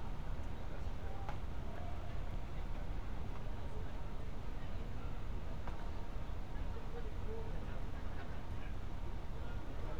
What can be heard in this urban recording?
unidentified human voice